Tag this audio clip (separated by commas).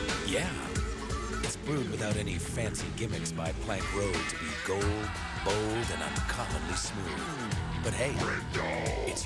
Music, Speech